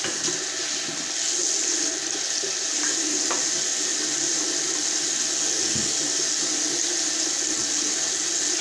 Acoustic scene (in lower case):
restroom